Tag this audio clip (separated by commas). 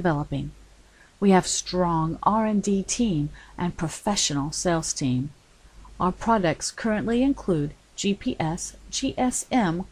Speech